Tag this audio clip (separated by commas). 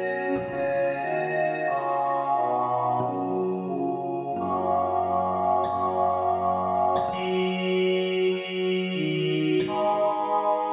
Music, Sampler